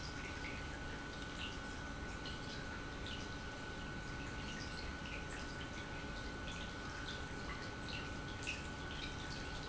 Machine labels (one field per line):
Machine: pump